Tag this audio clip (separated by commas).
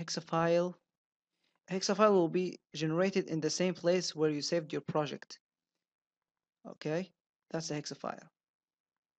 Speech